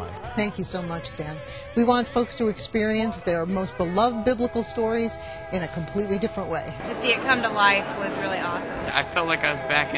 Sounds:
speech
music

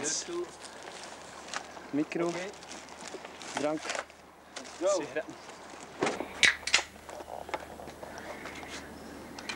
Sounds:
speech

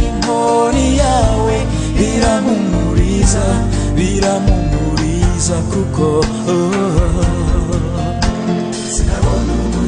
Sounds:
choir
singing
christian music
music

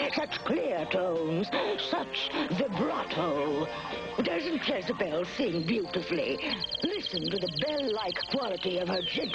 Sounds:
speech

